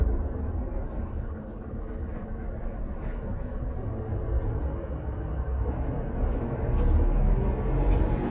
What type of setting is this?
bus